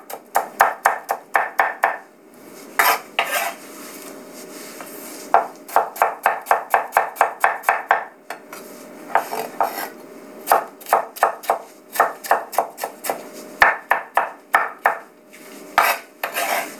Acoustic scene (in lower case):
kitchen